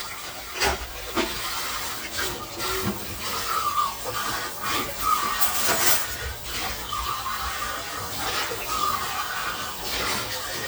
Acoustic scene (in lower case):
kitchen